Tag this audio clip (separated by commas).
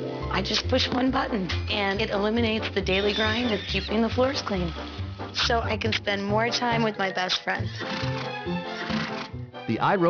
Oink, Speech, Music